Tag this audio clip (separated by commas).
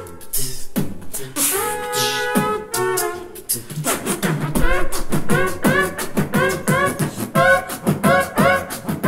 beat boxing